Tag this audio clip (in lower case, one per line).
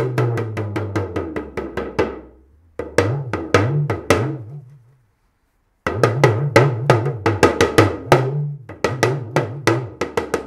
playing djembe